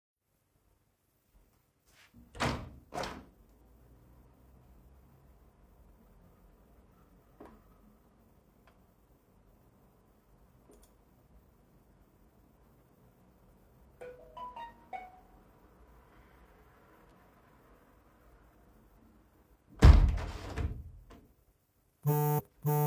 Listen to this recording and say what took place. Opened a window, heard a phone notification and closed the window and then another notification rang